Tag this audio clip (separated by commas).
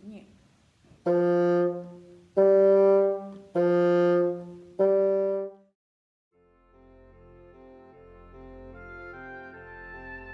playing bassoon